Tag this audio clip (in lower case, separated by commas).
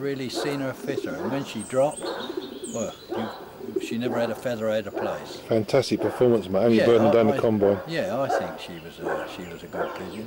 bird call, chirp, bird